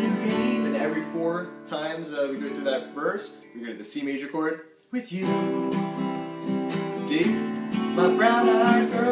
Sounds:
musical instrument, acoustic guitar, guitar, strum, plucked string instrument, speech, music

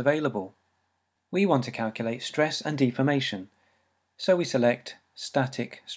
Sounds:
speech

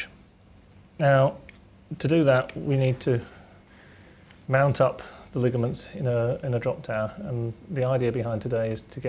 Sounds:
speech

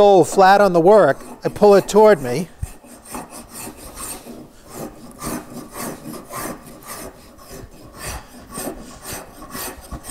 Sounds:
rub, filing (rasp), wood

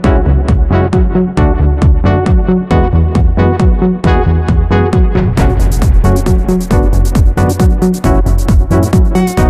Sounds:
music, trance music

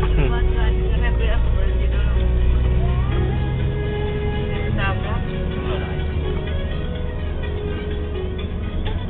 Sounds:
music, speech

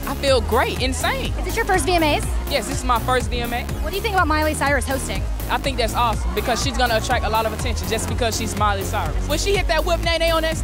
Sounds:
speech, music

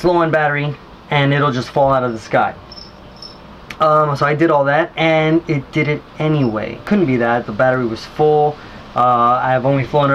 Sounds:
speech, inside a small room

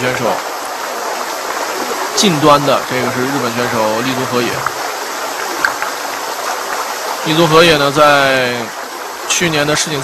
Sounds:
speech

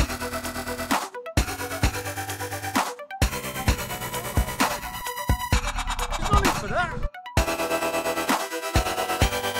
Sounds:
music, electronic music, dubstep

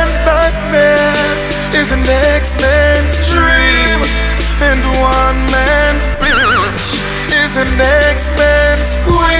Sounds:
music

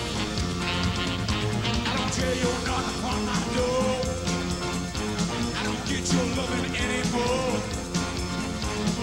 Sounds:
music

